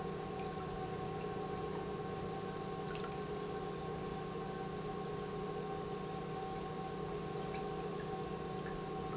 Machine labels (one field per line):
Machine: pump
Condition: normal